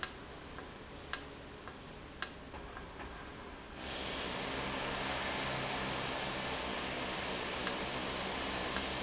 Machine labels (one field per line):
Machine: valve